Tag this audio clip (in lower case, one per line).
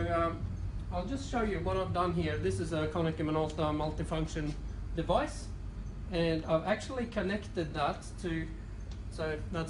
speech